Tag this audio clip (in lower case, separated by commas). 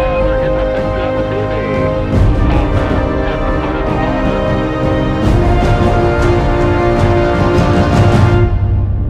music